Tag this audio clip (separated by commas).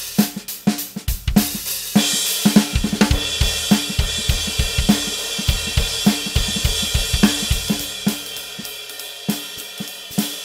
Drum, Music, Drum kit, Musical instrument, Hi-hat